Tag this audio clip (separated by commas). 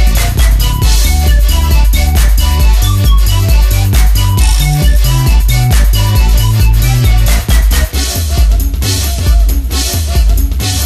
Music, Rhythm and blues, Video game music